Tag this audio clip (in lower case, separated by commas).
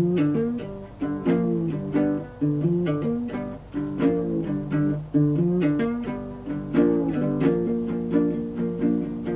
music